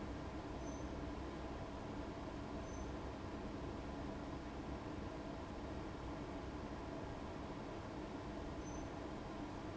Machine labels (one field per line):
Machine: fan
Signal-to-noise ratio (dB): 6 dB